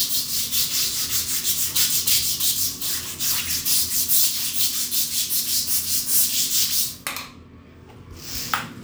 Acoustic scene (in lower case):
restroom